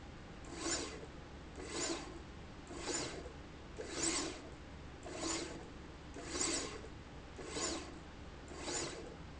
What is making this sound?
slide rail